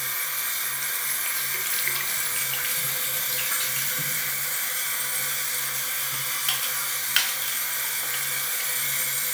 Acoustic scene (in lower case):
restroom